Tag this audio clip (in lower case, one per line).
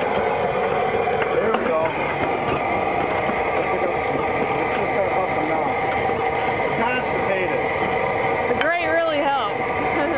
speech